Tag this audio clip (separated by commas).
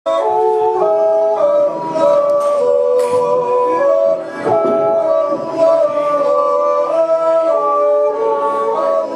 Yodeling, Male singing